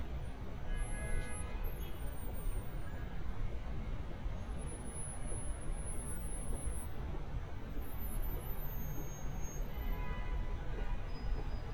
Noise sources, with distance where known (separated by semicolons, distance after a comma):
car horn, far